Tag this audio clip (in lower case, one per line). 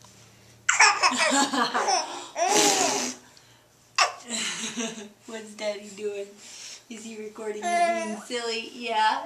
people belly laughing